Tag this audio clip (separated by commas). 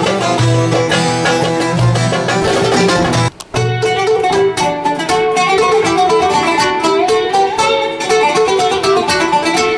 Musical instrument, Banjo, Music, Plucked string instrument